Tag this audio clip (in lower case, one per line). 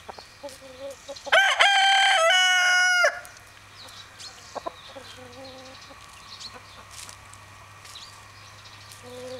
chicken crowing
cluck
fowl
cock-a-doodle-doo
chicken